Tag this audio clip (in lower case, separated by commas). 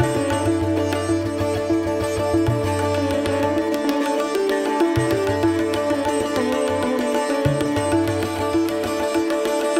playing sitar